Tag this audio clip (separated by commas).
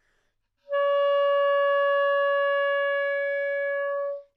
Wind instrument, Music, Musical instrument